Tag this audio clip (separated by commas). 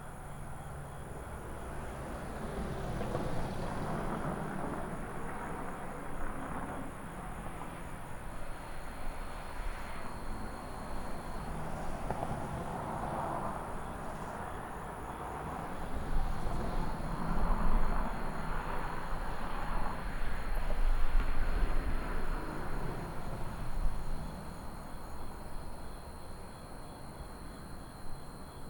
Vehicle, Motor vehicle (road), Cricket, Wild animals, Insect, Animal